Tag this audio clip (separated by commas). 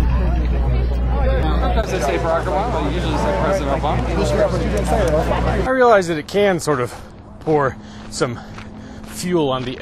Conversation, man speaking, monologue, woman speaking, Speech